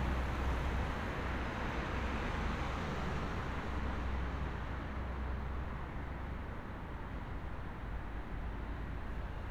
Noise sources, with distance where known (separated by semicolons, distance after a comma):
engine of unclear size